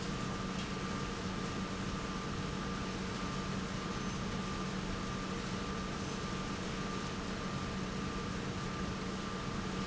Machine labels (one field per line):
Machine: pump